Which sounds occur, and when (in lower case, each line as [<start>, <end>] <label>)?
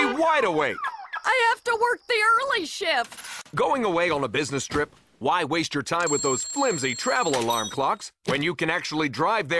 [0.00, 0.77] speech synthesizer
[0.00, 9.55] background noise
[0.61, 1.18] car alarm
[1.21, 3.12] speech synthesizer
[3.00, 3.53] generic impact sounds
[3.51, 4.83] speech synthesizer
[5.20, 8.08] speech synthesizer
[6.07, 7.96] alarm clock
[8.23, 9.55] speech synthesizer